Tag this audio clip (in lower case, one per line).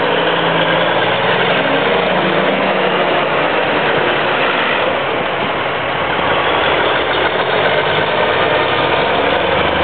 vehicle
truck